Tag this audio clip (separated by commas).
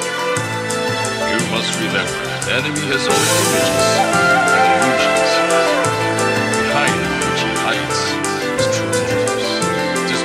Speech, Music